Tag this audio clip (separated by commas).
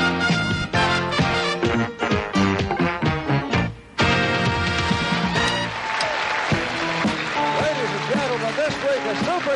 Music, Speech